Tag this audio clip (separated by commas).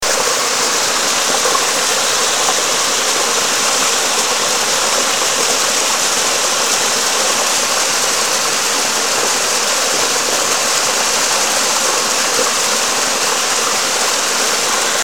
Water